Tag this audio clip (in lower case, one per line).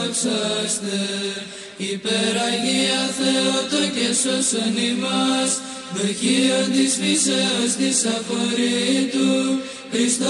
mantra